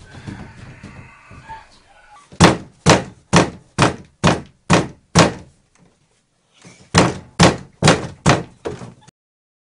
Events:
[0.00, 9.08] background noise
[8.24, 8.45] knock
[9.03, 9.07] generic impact sounds

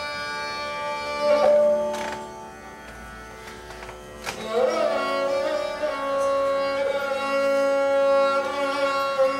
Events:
[0.00, 9.35] music
[1.34, 1.53] generic impact sounds
[1.85, 2.23] generic impact sounds
[2.82, 2.99] generic impact sounds
[3.37, 3.90] generic impact sounds
[4.21, 4.39] generic impact sounds

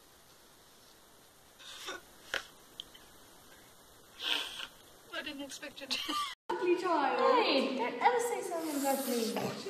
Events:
[0.00, 6.32] mechanisms
[0.59, 0.92] surface contact
[1.53, 1.98] human sounds
[2.30, 2.39] generic impact sounds
[2.75, 2.79] generic impact sounds
[2.91, 2.96] generic impact sounds
[3.40, 3.72] human sounds
[4.17, 4.62] human sounds
[5.05, 5.98] woman speaking
[5.88, 6.32] laughter
[6.46, 9.65] conversation
[6.47, 9.54] woman speaking
[6.48, 9.65] mechanisms
[9.31, 9.41] generic impact sounds
[9.65, 9.65] woman speaking

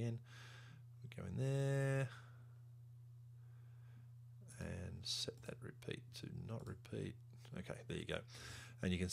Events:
[0.01, 0.25] male speech
[0.01, 9.12] background noise
[0.20, 0.77] breathing
[1.03, 2.28] male speech
[2.11, 2.56] breathing
[3.33, 4.09] breathing
[4.41, 7.14] male speech
[7.39, 8.34] male speech
[8.26, 8.73] breathing

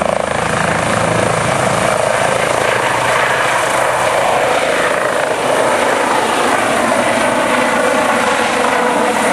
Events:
[0.00, 9.32] helicopter

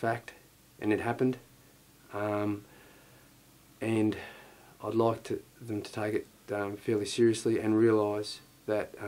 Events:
[0.00, 0.40] male speech
[0.00, 9.05] background noise
[0.82, 1.45] male speech
[2.16, 2.62] male speech
[2.62, 3.35] breathing
[3.82, 4.30] male speech
[4.13, 4.79] breathing
[4.84, 5.43] male speech
[5.61, 6.25] male speech
[6.14, 6.24] tick
[6.49, 8.41] male speech

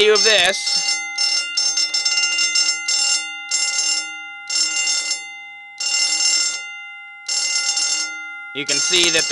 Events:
[0.00, 0.55] man speaking
[0.00, 9.31] fire alarm
[8.55, 9.31] man speaking
[8.89, 9.13] generic impact sounds

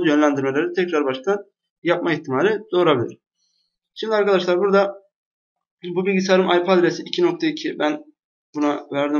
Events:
[0.00, 1.54] man speaking
[0.00, 5.18] background noise
[1.84, 3.25] man speaking
[2.97, 3.16] clicking
[3.95, 5.17] man speaking
[5.56, 5.74] clicking
[5.56, 8.18] background noise
[5.82, 8.20] man speaking
[7.10, 7.28] clicking
[8.54, 9.15] man speaking
[8.56, 9.15] background noise
[8.57, 8.81] clicking

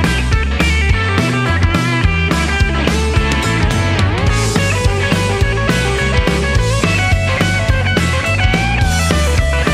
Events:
[0.00, 9.73] music

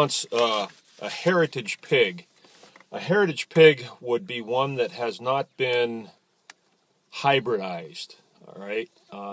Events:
[0.03, 0.68] male speech
[0.36, 0.45] generic impact sounds
[0.68, 1.38] surface contact
[0.90, 2.25] male speech
[2.37, 2.53] tweet
[2.38, 2.80] surface contact
[2.60, 2.87] generic impact sounds
[2.90, 3.90] male speech
[4.09, 5.44] male speech
[5.52, 6.13] male speech
[6.46, 6.59] generic impact sounds
[7.05, 8.16] male speech
[8.34, 8.87] male speech
[8.91, 9.18] tweet

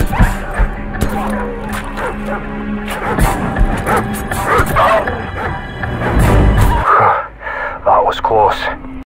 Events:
[0.00, 0.28] bark
[0.00, 9.01] music
[0.00, 9.02] video game sound
[0.44, 0.65] bark
[0.86, 1.07] gunshot
[1.11, 1.50] bark
[1.64, 2.43] generic impact sounds
[1.67, 2.39] bark
[2.79, 3.37] bark
[3.81, 4.02] bark
[4.30, 5.07] bark
[5.25, 5.57] bark
[6.82, 7.24] bark
[7.36, 7.82] breathing
[7.79, 8.72] male speech

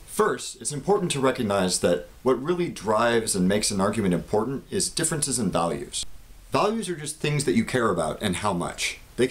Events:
[0.00, 9.30] background noise
[0.09, 2.06] male speech
[2.22, 4.59] male speech
[4.68, 6.07] male speech
[6.56, 8.95] male speech
[9.20, 9.30] male speech

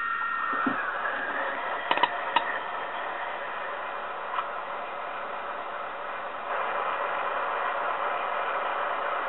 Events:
[0.00, 9.25] mechanisms
[0.46, 0.74] tap
[1.88, 2.07] generic impact sounds
[2.28, 2.41] generic impact sounds
[4.29, 4.47] generic impact sounds

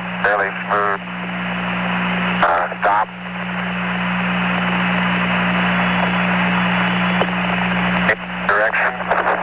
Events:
[0.00, 9.42] mechanisms
[0.00, 9.42] noise
[0.24, 0.53] male speech
[0.24, 0.50] radio
[0.69, 0.98] male speech
[0.69, 0.98] radio
[2.41, 2.69] radio
[2.41, 2.70] male speech
[2.83, 3.07] radio
[2.84, 3.07] male speech
[7.17, 7.32] generic impact sounds
[8.05, 8.18] male speech
[8.09, 8.21] radio
[8.51, 8.91] radio
[8.52, 8.91] male speech
[9.03, 9.42] radio

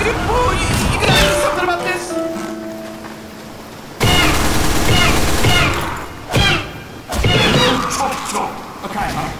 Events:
[0.00, 3.51] music
[0.00, 9.35] video game sound
[3.98, 5.74] gunfire
[7.24, 7.75] sound effect

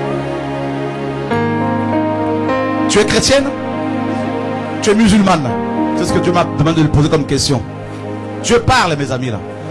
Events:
[0.00, 9.70] music
[2.85, 3.40] male speech
[4.05, 4.20] surface contact
[4.79, 5.50] male speech
[5.94, 6.41] male speech
[6.56, 7.58] male speech
[7.88, 7.98] surface contact
[8.40, 9.40] male speech

